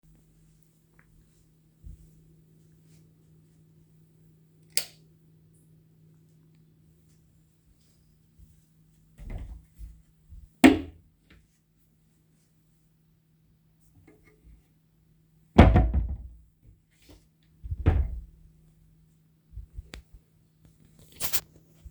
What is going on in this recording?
I walked over to the light switch, turned it on, went further to the wardrobe, opened the door, did not find what I was searching for and closed the door again to walk off.